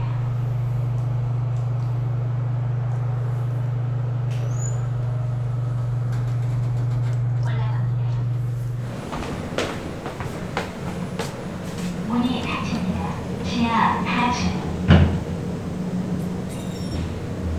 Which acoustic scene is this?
elevator